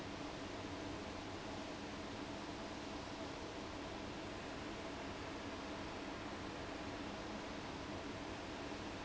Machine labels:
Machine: fan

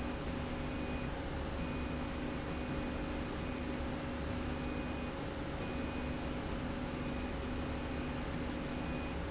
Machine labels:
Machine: slide rail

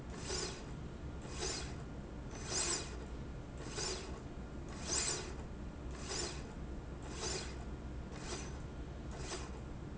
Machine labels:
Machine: slide rail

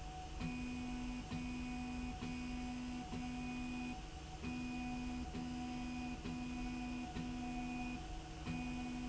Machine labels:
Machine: slide rail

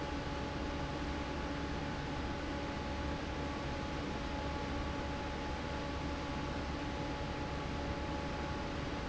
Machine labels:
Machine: fan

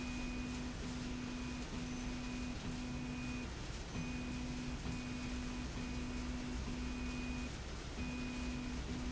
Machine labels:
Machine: slide rail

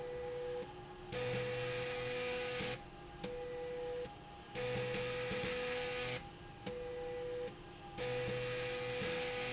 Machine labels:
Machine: slide rail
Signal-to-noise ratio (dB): 6 dB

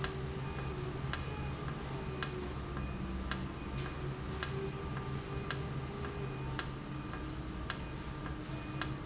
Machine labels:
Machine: valve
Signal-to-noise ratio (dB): -6 dB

